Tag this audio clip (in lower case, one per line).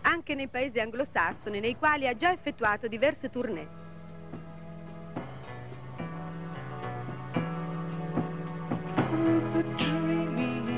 speech
music